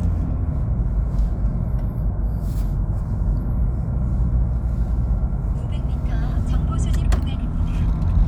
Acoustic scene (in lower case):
car